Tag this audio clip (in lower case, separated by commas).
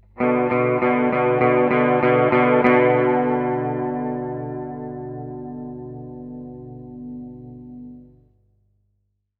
plucked string instrument, electric guitar, guitar, music, musical instrument